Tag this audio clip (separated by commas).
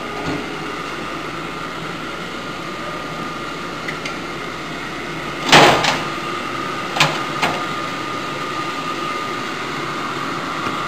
inside a large room or hall